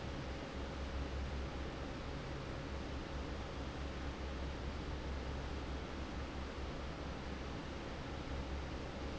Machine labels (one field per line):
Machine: fan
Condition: normal